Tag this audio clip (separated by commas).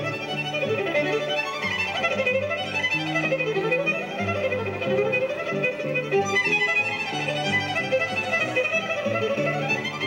String section, Music